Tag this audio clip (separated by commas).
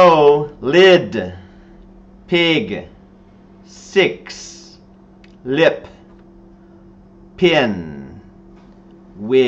Speech